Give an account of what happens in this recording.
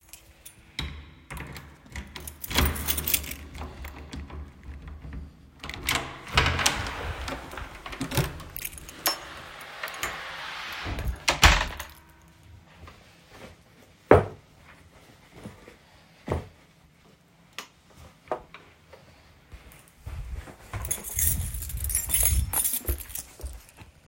I inserted my keys into the door, unlocked it, and opened it and closed it afterwrads. Then I took off my shoes, turned on the light, and walked to another room while holding the keys in my hands.